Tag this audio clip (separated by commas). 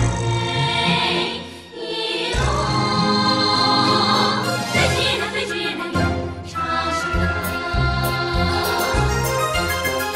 Music, Choir, Female singing